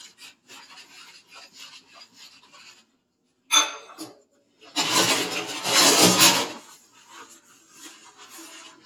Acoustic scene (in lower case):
kitchen